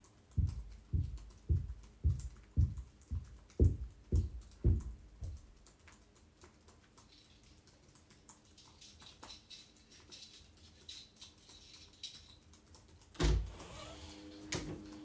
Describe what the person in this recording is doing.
typing on my laptop and my roommate comes home unlocks the door and comes in